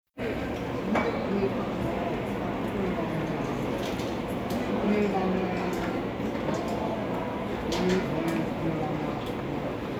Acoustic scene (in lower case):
cafe